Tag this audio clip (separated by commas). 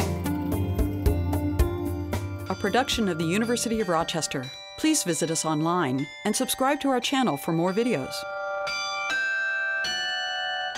Music, Speech